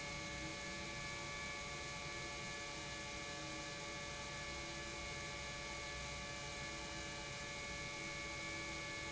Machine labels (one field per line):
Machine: pump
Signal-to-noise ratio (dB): 6 dB